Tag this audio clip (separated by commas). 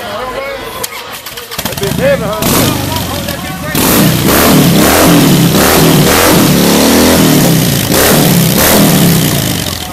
Speech, Vehicle, Motorcycle